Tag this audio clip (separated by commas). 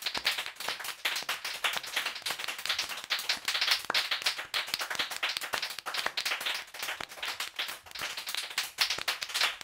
Sound effect, Clapping